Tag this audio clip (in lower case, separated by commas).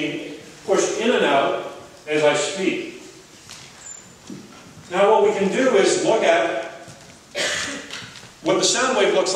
speech